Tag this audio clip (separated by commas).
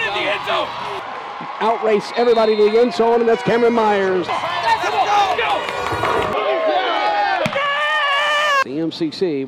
Speech